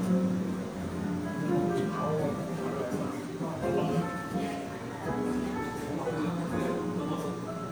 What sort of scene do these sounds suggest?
cafe